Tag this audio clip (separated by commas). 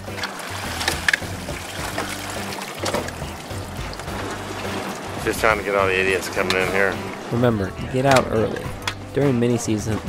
Liquid, Water, Speech, Music